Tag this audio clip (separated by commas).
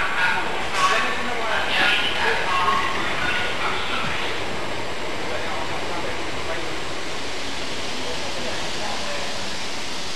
Speech, Vehicle, Train